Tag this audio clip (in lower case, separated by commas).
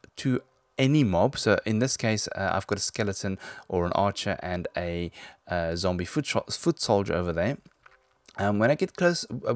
speech